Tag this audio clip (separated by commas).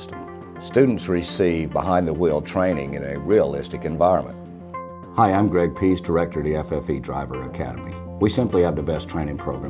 Music, Speech